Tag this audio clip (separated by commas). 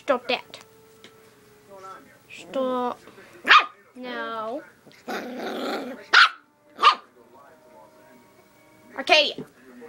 Speech, Music, Dog, pets, Bark, Animal